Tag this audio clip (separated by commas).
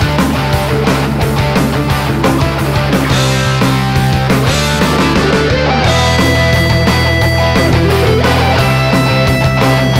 Music, Dance music